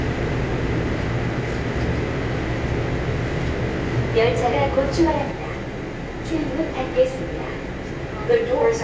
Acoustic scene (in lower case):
subway train